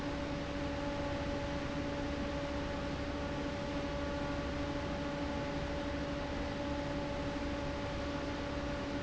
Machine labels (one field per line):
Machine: fan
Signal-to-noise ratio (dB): -6 dB